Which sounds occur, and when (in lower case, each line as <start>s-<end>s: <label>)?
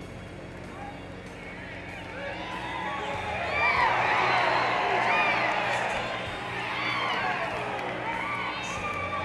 0.0s-9.2s: background noise
0.0s-9.2s: music
0.6s-0.7s: generic impact sounds
0.7s-0.9s: man speaking
1.2s-1.3s: generic impact sounds
1.3s-6.1s: shout
6.5s-7.6s: shout
7.1s-7.2s: clapping
7.4s-8.0s: clapping
8.0s-9.2s: shout
8.1s-8.2s: clapping